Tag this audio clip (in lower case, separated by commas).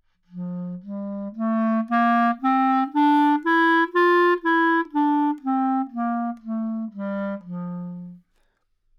music, musical instrument, woodwind instrument